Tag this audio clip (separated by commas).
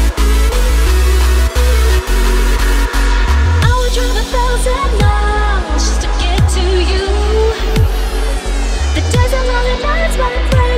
Electronic dance music